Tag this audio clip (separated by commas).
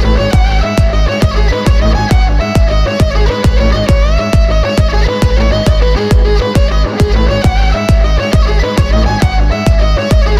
Musical instrument, Violin, Music